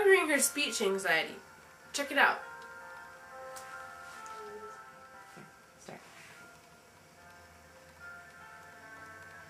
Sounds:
speech, music

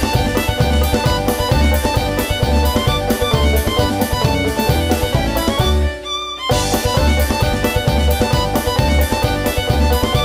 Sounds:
music, exciting music

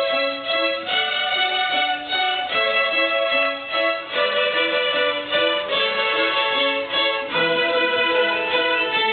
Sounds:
music, musical instrument, violin

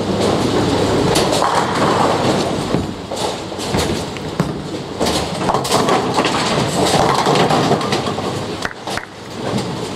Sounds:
bowling impact

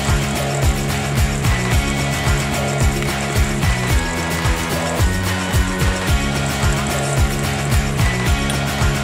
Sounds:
music

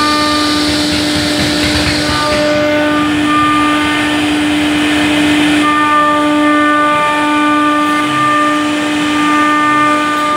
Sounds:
planing timber

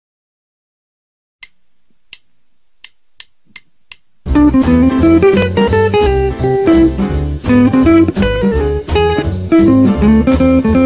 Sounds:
guitar, jazz, plucked string instrument, musical instrument, inside a small room, music

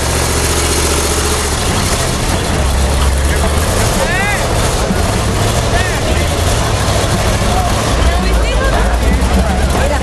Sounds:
vehicle, car, speech

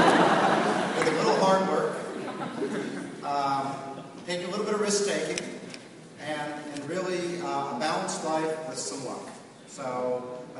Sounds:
speech, man speaking, narration

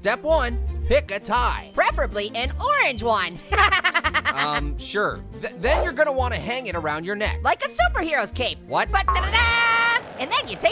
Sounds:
speech, music

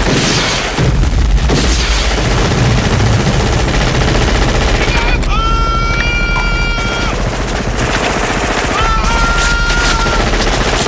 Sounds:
machine gun shooting

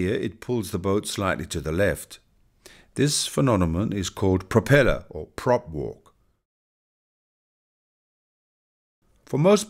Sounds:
speech

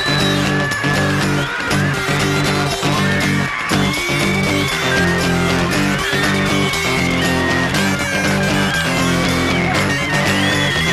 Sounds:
music, funny music

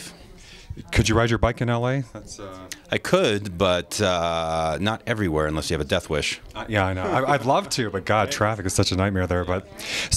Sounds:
speech

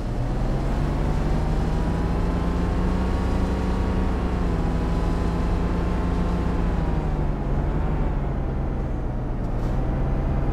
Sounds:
truck

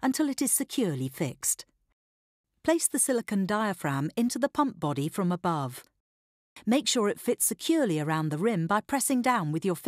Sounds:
speech

